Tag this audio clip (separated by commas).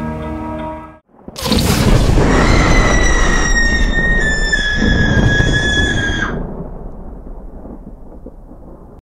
Music